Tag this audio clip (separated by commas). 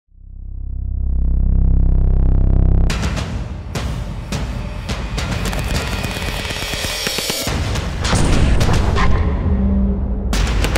machine gun shooting